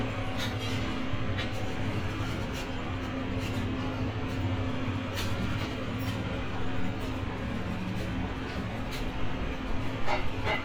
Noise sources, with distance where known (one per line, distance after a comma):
medium-sounding engine, near